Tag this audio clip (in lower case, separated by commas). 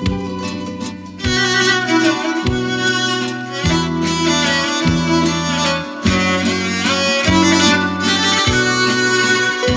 sad music, musical instrument, music, guitar